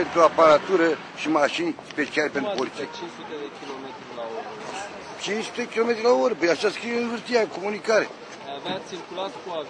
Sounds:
Speech

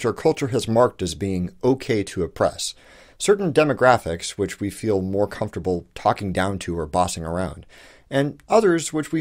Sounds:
Narration, Speech

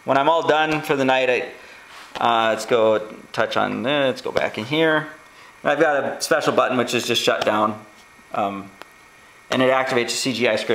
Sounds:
Speech

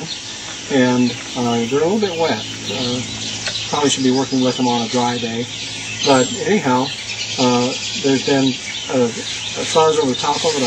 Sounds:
Speech, Bird

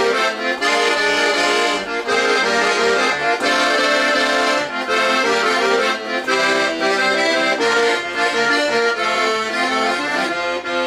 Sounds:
Rock and roll, Music

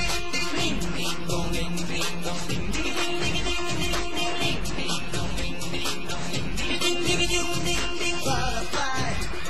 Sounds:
Music

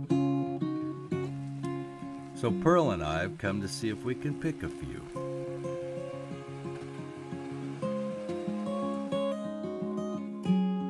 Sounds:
Music, Speech

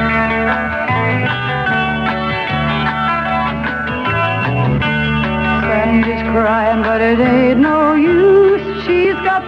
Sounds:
Music

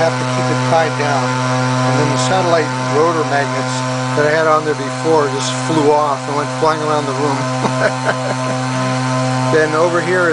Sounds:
inside a small room, Speech

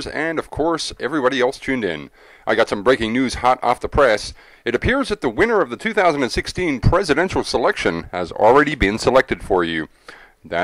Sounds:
Speech

